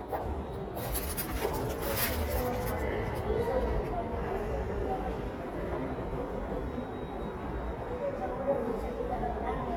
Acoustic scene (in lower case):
subway station